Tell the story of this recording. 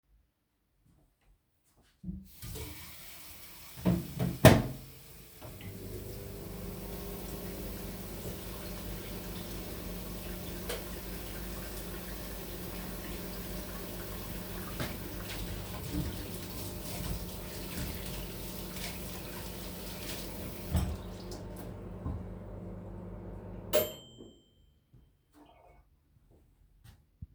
I walked to the faucet, turned it on, closed the microwave and turned it on, washed my hands under the running water, turned the water off, then the microwave finished.